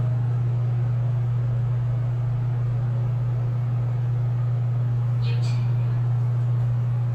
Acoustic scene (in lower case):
elevator